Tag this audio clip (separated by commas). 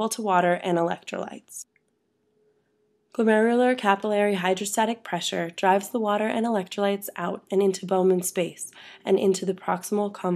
Speech